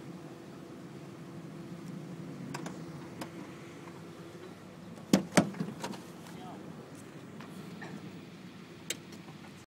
Car door closing and opening